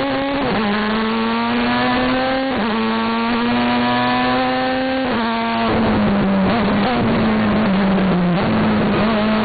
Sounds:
Vehicle, Car

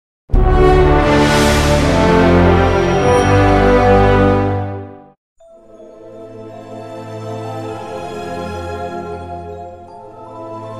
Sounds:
foghorn

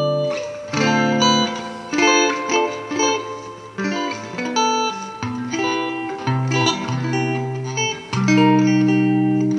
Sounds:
Music, Plucked string instrument, Electric guitar, Strum, Musical instrument, Guitar

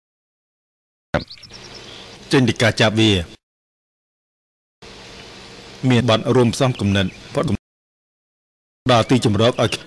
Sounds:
Speech

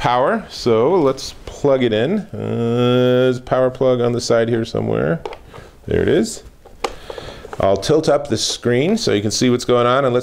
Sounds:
Speech

